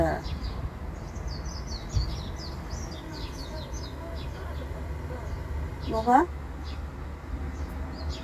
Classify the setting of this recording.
park